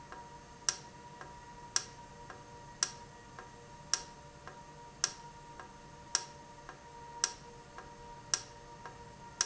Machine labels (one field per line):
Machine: valve